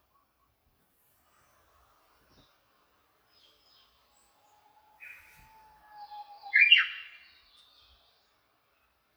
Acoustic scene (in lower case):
park